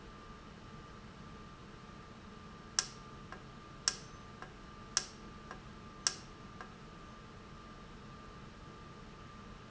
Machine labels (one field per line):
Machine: valve